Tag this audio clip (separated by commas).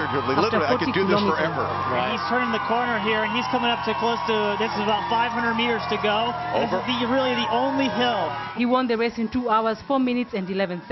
Speech, outside, urban or man-made